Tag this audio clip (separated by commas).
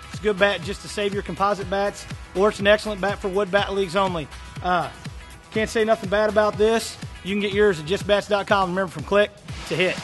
Speech, Music